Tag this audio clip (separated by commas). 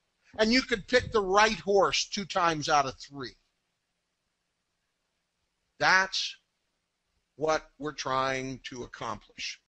Speech